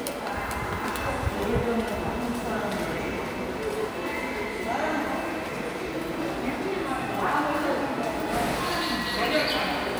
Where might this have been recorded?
in a subway station